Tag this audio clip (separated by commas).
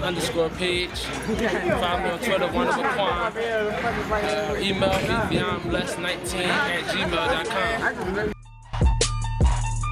Music, Speech